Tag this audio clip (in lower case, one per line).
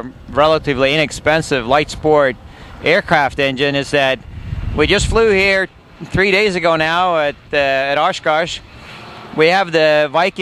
speech